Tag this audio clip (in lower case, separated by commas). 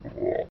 frog, animal, wild animals